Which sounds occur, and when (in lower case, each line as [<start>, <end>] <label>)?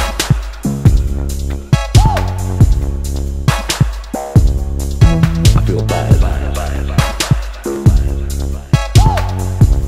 [0.00, 9.85] music
[1.94, 2.28] whoop
[5.69, 6.81] man speaking
[6.83, 8.73] echo
[8.95, 9.26] whoop